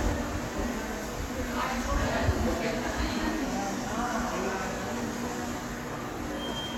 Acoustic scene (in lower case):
subway station